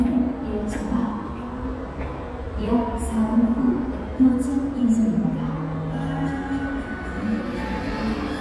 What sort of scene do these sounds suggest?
subway station